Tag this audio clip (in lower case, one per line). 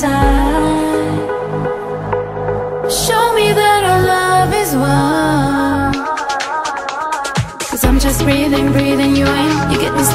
music